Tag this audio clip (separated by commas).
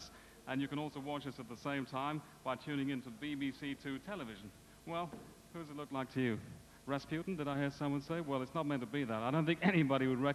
Speech